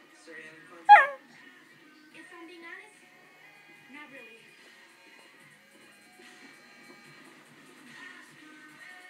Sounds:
dog, music, whimper (dog), speech, animal, bow-wow

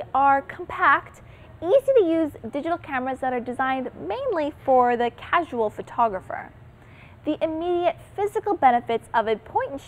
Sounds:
speech

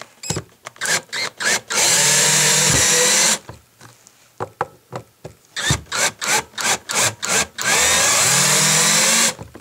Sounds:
power tool, inside a small room

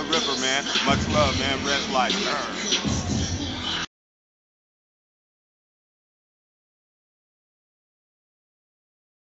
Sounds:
music, speech

